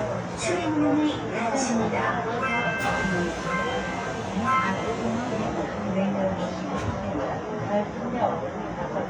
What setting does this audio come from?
subway train